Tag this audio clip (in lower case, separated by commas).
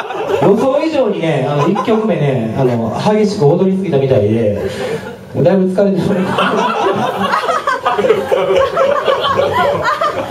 speech, man speaking